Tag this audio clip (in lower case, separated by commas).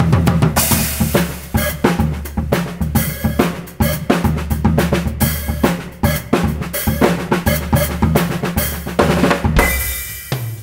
drum, drum roll, percussion, drum kit, bass drum, rimshot, snare drum